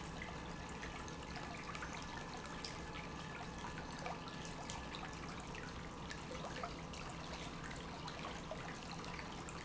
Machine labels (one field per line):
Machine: pump